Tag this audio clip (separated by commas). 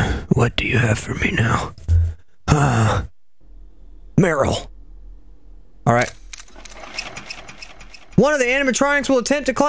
inside a small room, Speech